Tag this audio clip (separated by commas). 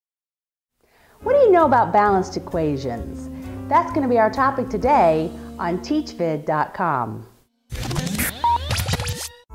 Speech, inside a small room, Music